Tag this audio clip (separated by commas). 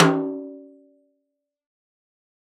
Music, Musical instrument, Drum, Percussion, Snare drum